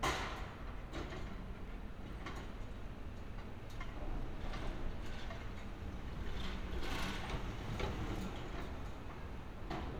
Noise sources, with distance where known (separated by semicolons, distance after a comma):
non-machinery impact, near